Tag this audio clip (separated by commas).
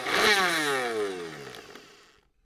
Domestic sounds